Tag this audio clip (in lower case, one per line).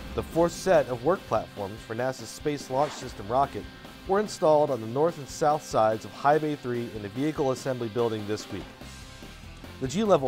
music
speech